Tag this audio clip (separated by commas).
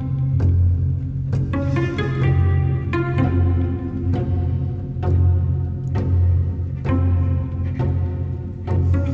Music